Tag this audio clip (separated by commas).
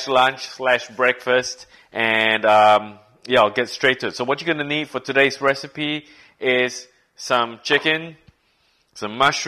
Speech